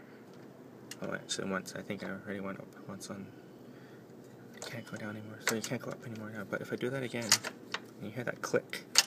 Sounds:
speech

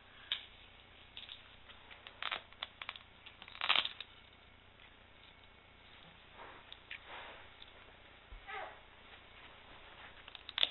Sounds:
kid speaking

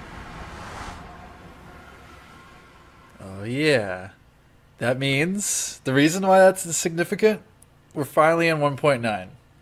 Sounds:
speech

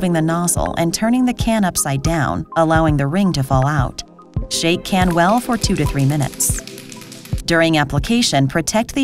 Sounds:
music, speech

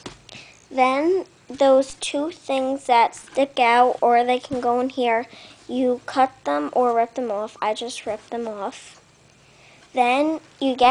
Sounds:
speech

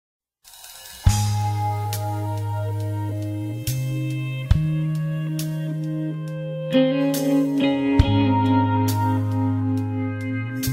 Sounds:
music

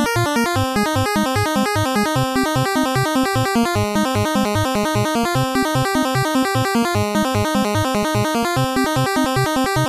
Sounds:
music, video game music

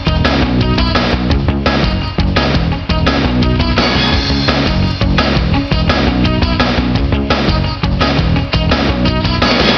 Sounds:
video game music, music

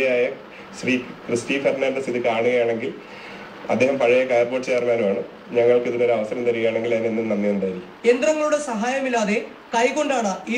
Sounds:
speech

